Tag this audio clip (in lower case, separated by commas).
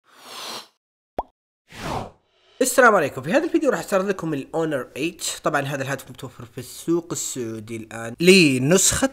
speech, plop